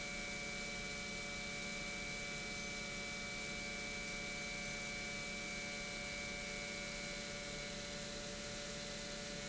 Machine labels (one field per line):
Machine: pump